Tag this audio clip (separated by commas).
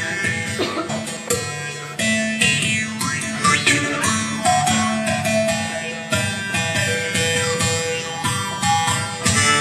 Music